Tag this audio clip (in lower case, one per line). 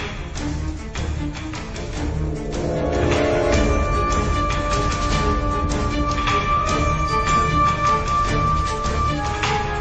music